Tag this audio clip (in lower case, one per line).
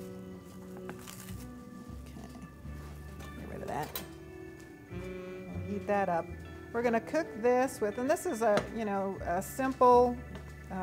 music
speech